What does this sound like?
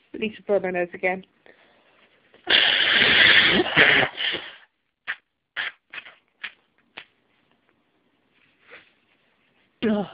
A woman speaking then blowing her nose